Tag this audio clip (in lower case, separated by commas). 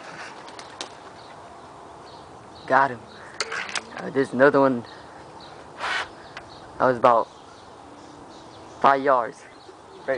speech